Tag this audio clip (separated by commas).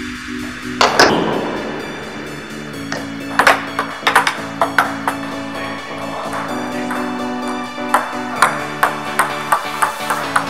playing table tennis